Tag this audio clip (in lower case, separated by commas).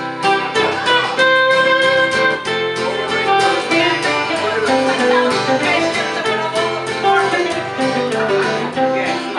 blues, music, inside a large room or hall, speech